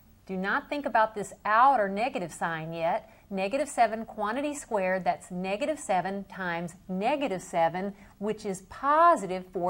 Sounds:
speech

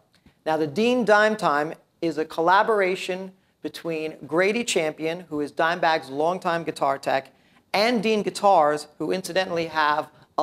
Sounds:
speech

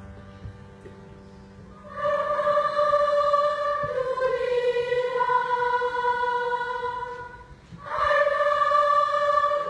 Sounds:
singing choir

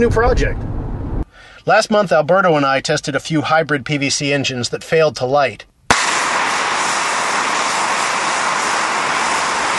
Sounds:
speech

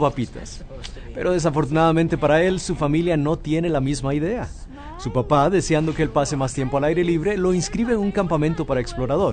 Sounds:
speech, music

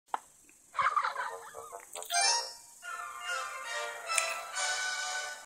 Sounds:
television, music

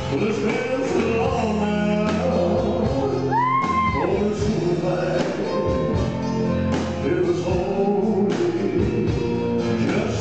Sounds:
male singing, music

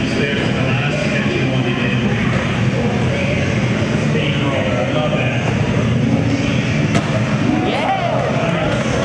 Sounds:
speech

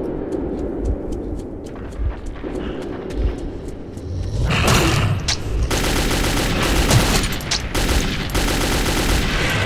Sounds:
fusillade

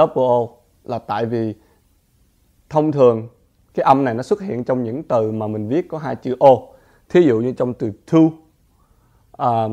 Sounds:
speech

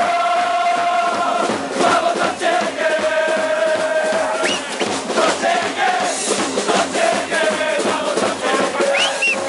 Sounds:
speech, music

